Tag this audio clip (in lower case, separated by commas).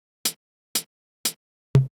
percussion, musical instrument, cymbal, music, hi-hat